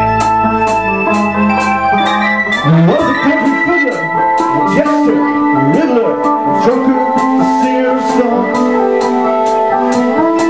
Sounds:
Music, Speech, Singing

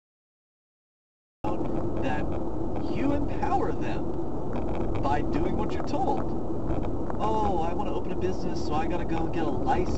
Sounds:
Vehicle, Car, Speech

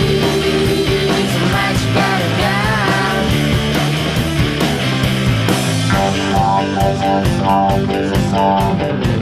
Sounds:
Music

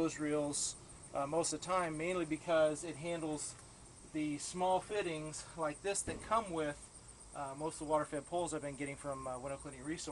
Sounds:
Speech

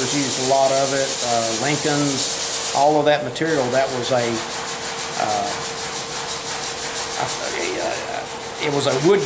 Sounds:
Rub

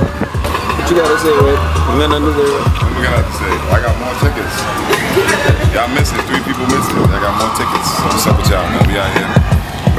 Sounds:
Speech, Music

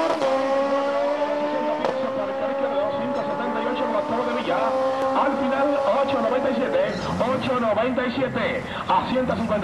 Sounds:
Speech

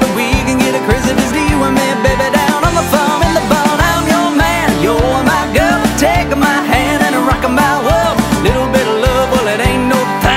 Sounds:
Bluegrass, Country, Music

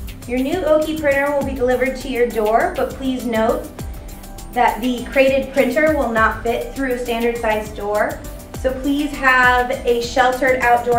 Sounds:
Music, Speech

